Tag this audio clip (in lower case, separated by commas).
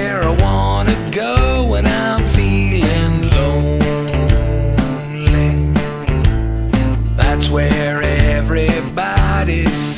music